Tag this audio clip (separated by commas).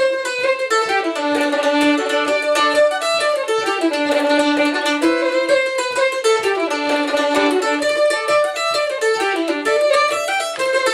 Bowed string instrument, Violin, Pizzicato